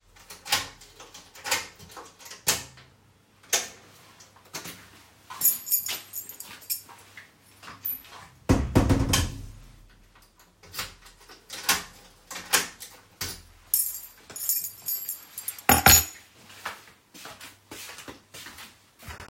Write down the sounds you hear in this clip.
door, keys, footsteps